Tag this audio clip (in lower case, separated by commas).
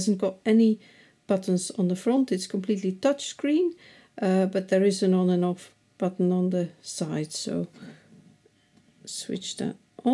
speech